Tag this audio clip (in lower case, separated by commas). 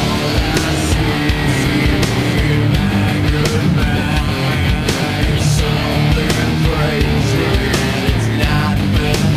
music